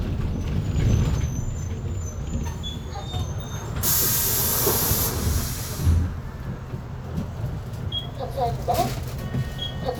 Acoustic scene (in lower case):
bus